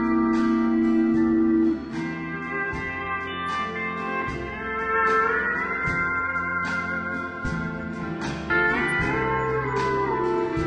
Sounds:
musical instrument, music, plucked string instrument

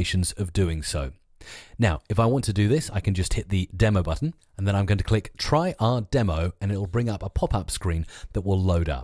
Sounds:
speech, speech synthesizer

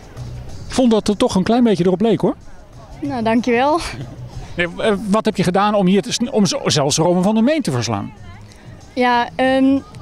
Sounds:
speech

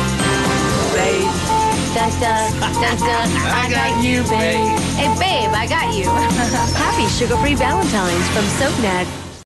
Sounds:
music, speech

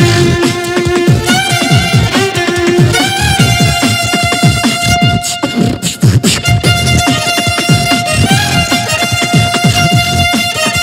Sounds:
violin, music

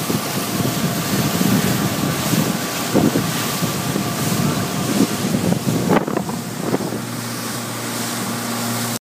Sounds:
sailing, sailboat

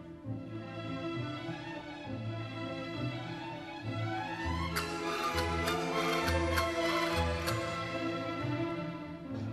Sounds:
playing castanets

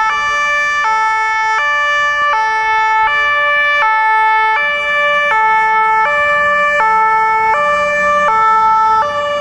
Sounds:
ambulance siren, siren, ambulance (siren), emergency vehicle

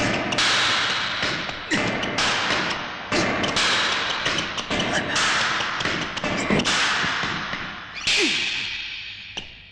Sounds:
playing squash

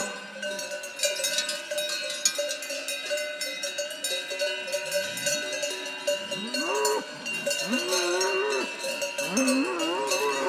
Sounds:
cattle

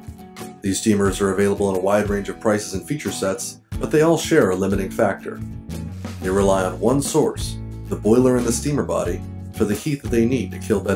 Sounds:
music, speech

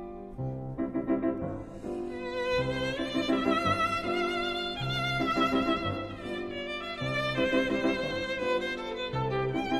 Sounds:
musical instrument, music, fiddle

